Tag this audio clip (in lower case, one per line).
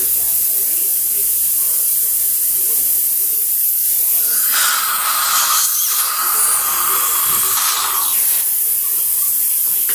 electric toothbrush